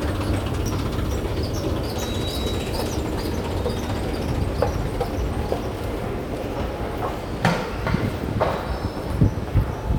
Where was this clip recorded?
in a subway station